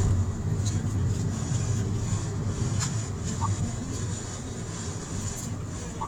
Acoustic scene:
car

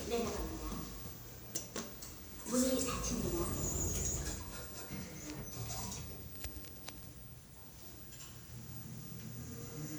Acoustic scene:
elevator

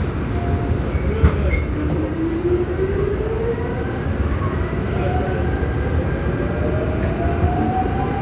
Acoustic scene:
subway train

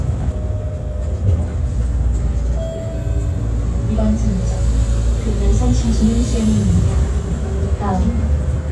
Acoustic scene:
bus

